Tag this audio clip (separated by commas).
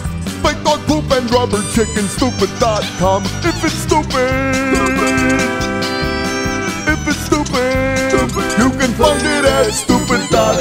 Music